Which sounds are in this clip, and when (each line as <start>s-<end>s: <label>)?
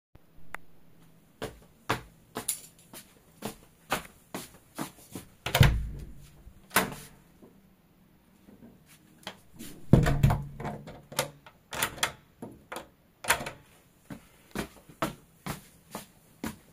1.3s-5.5s: footsteps
2.4s-2.6s: keys
5.4s-7.2s: door
9.8s-13.7s: door
14.0s-16.7s: footsteps